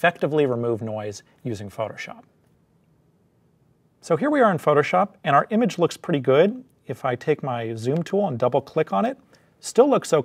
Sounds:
speech

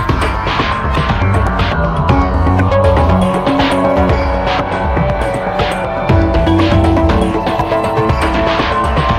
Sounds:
music

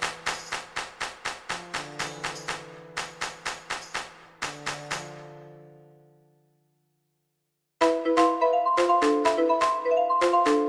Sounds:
percussion
mallet percussion
glockenspiel
marimba

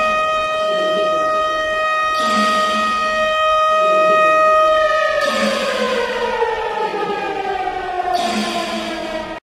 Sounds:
siren

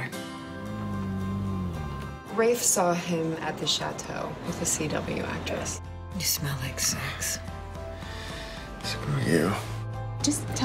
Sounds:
music
speech

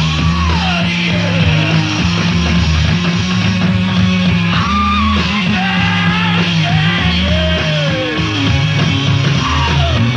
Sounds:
music

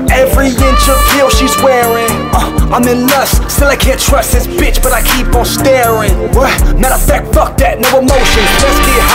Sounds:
music

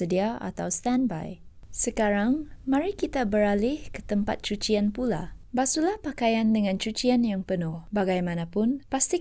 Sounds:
speech

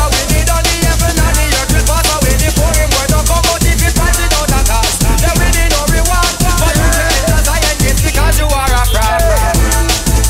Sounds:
reggae
song
music

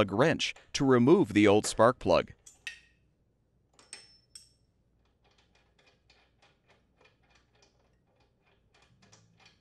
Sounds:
speech

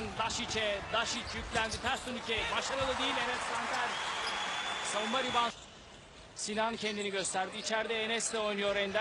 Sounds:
speech

